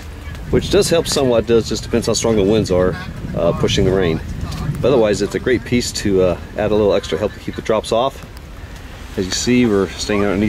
Rain is falling and a man speaks